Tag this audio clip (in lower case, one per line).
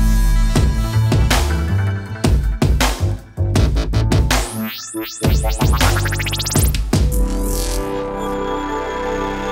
drum machine